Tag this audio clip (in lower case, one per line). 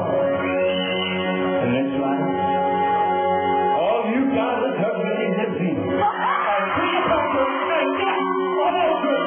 music
male singing